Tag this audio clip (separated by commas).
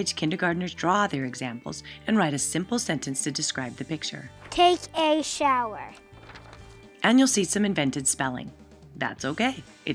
Speech